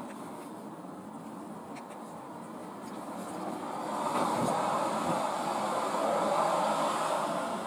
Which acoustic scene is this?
car